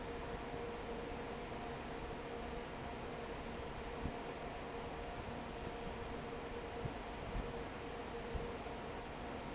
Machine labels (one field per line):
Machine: fan